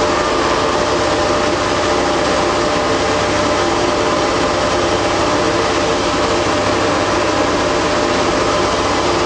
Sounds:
heavy engine (low frequency)
engine

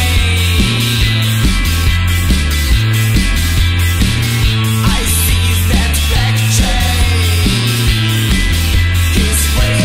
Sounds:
psychedelic rock
music

